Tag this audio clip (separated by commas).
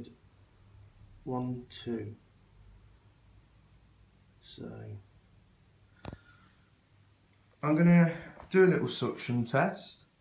Speech